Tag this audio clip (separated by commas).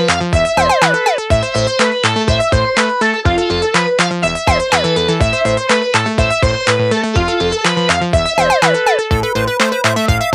Electronic music, Music, Techno, Electronica